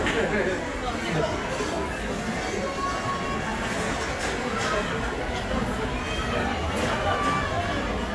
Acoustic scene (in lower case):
crowded indoor space